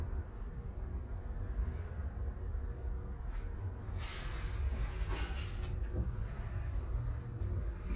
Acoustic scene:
elevator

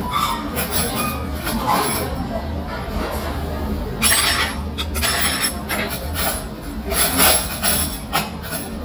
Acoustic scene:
restaurant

